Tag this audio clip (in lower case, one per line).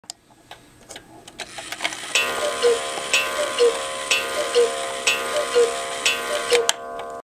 tick